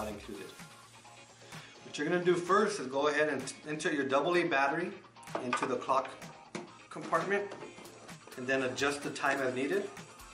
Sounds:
speech
music

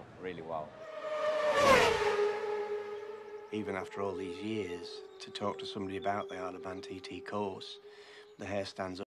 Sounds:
speech

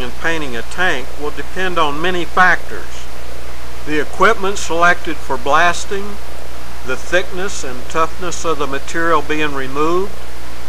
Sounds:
speech

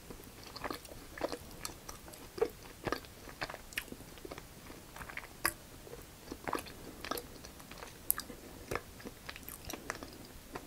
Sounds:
people slurping

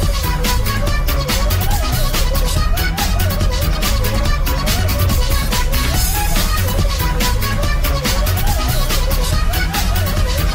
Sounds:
music

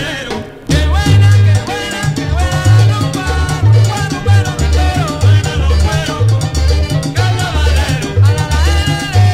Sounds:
music
music of latin america
salsa music

